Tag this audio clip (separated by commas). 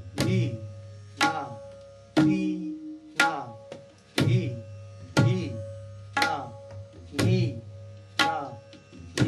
playing tabla